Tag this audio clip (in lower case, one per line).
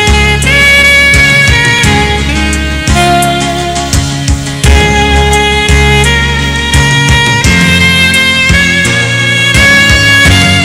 music